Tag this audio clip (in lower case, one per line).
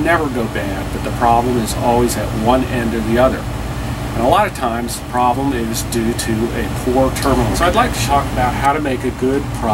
speech